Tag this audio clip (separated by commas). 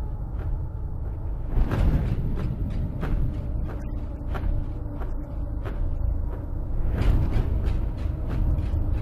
Speech, Music